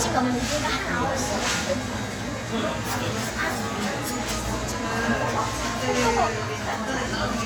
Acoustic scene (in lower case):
cafe